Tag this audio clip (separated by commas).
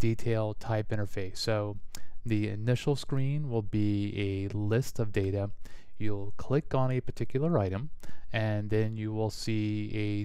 Speech